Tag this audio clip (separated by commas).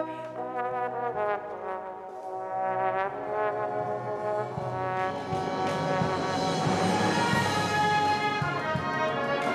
playing trombone